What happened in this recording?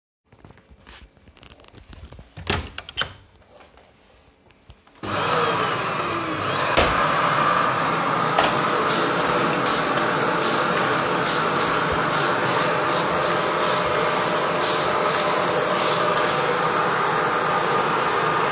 I opened the door to the hallway and started vacuum cleaning.